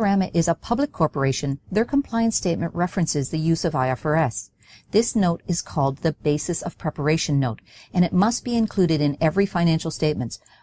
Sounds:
monologue

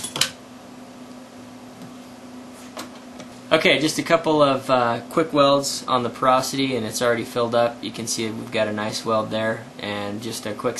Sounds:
inside a small room, Speech

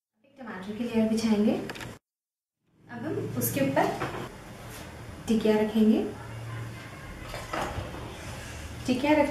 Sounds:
inside a small room, Speech

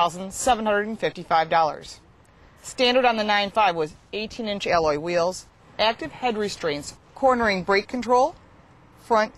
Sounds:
Speech

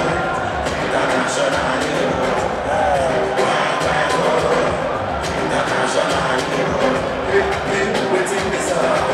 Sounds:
Music

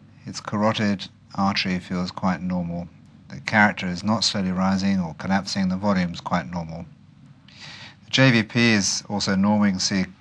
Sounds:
Speech

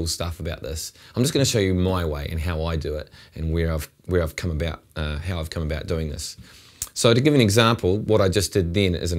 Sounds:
Speech

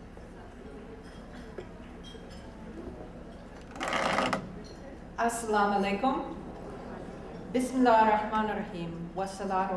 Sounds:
Female speech, Speech

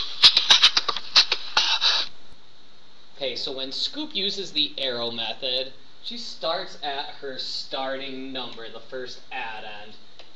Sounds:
Speech

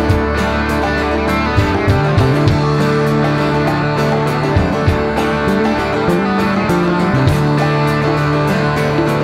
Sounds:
Knock, Music

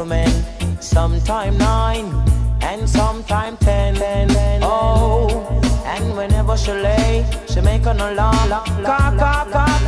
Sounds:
Music

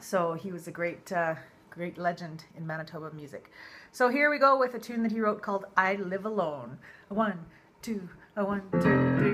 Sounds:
Music, Musical instrument, Violin, Speech

